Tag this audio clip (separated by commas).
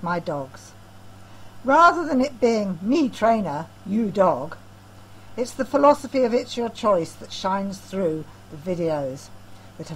Speech